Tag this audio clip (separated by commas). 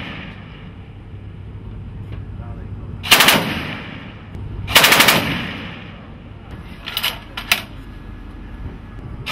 Vehicle